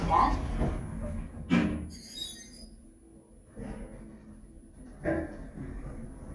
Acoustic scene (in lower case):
elevator